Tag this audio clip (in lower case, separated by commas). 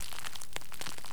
crackle, crinkling